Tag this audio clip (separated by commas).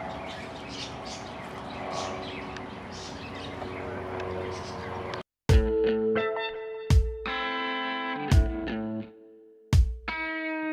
outside, rural or natural, Music